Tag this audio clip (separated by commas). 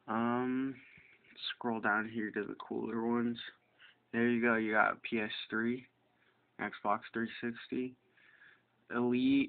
Speech